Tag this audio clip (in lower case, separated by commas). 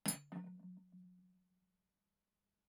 cutlery, domestic sounds